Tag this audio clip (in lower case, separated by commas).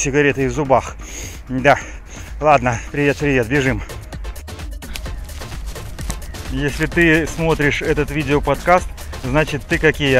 music, speech